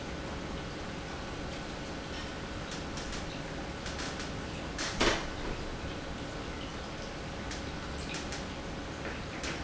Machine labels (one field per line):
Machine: pump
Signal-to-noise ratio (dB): -6 dB